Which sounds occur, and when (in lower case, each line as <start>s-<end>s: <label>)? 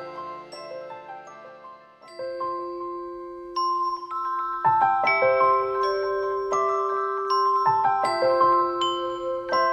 0.0s-9.7s: music